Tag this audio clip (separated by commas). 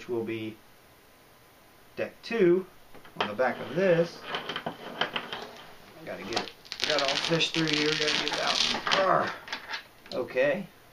Speech